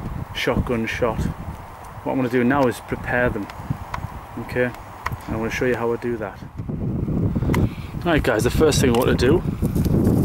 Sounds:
speech

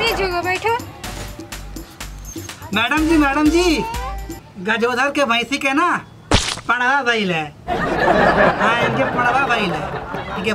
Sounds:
people slapping

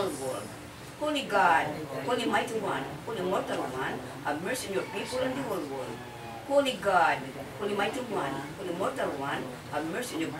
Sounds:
speech

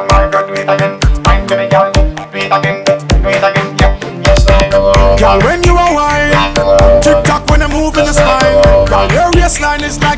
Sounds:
reggae
music

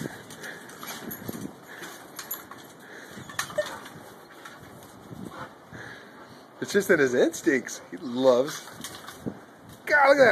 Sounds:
speech

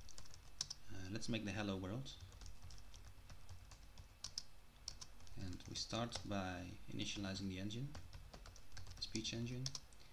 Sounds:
speech

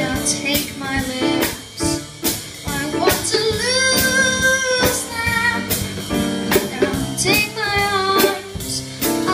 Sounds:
child singing
musical instrument
music

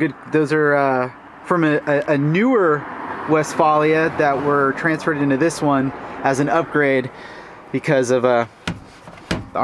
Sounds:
car
vehicle

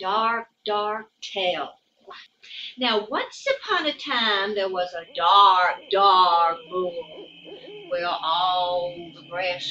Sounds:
speech

